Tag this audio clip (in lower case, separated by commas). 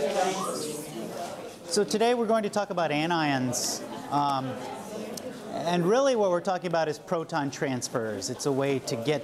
speech